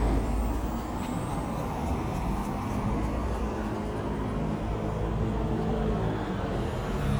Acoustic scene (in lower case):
street